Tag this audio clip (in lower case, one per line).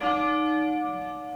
bell